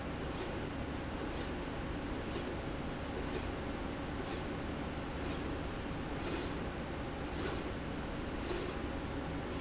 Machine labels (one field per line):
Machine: slide rail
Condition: normal